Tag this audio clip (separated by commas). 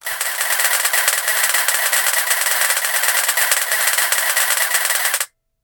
Camera, Mechanisms